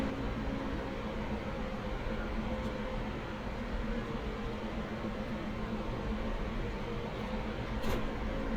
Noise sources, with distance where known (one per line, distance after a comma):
medium-sounding engine, near